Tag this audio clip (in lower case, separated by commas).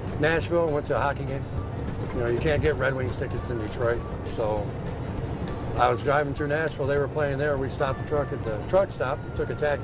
truck, music, speech, vehicle